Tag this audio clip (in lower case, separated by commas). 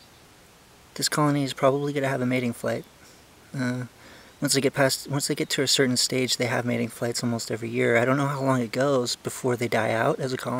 speech